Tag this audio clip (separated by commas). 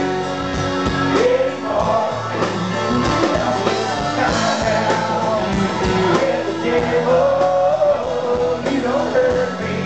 Music